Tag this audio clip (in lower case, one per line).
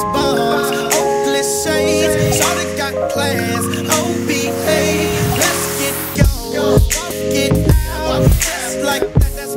music
hip hop music